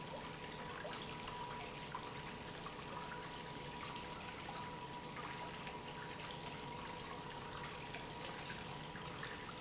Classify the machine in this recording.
pump